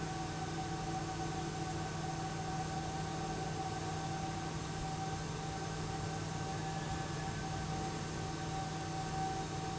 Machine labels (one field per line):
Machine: pump